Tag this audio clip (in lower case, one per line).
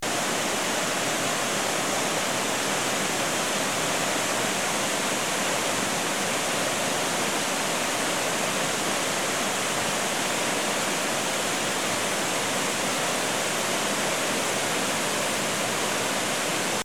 water